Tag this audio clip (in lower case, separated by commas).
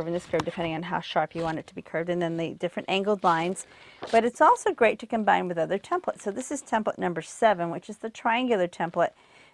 speech